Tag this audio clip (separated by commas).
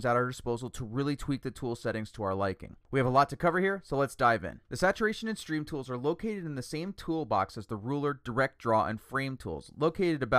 Speech